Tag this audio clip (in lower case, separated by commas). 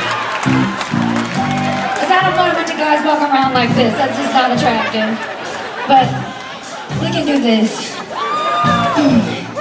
music, speech